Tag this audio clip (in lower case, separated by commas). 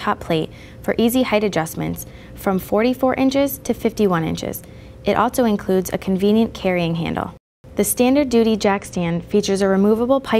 speech